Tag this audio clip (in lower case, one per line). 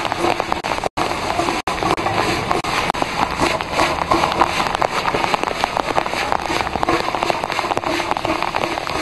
rain